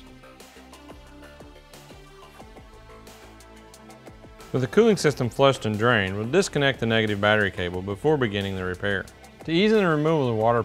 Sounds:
Music, Speech

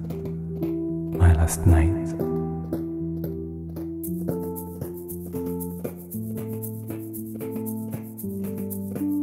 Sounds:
Music, Speech

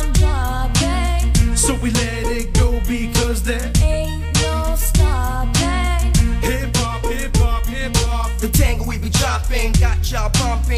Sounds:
Music

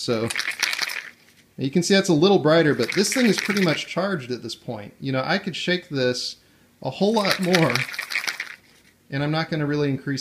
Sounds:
Speech

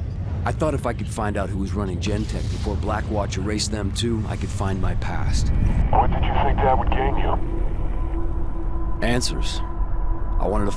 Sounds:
Speech

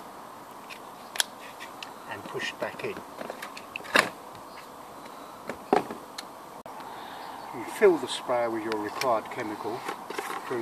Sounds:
Speech

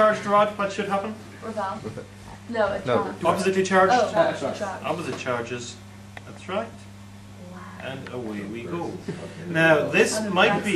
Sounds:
Speech

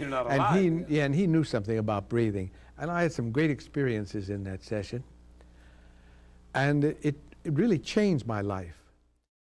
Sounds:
Speech

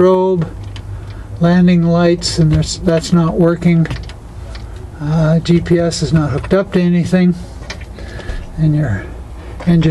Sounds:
outside, urban or man-made, Speech

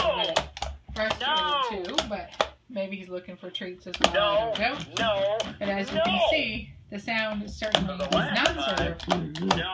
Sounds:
Speech

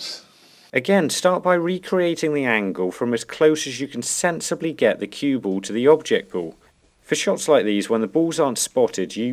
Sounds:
striking pool

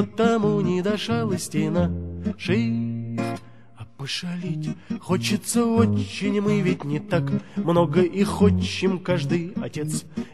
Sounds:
Music

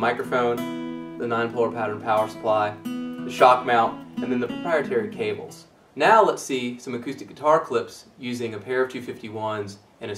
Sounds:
Music, Speech

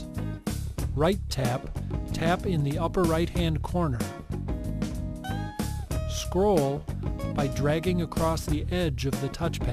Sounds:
Music, Speech

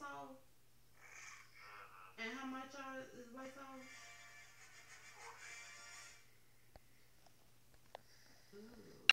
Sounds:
Speech, Music

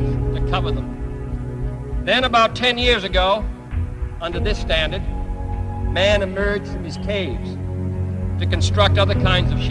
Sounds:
Speech, monologue, man speaking, Music

